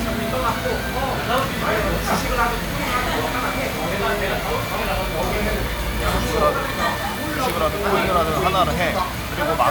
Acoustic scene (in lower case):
crowded indoor space